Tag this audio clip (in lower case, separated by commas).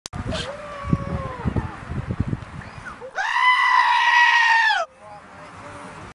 animal, livestock